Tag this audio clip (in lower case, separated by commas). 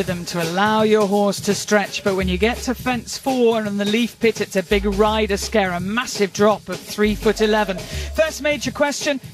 speech, music